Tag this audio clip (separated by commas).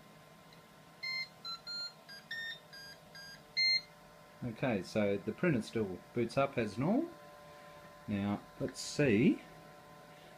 Speech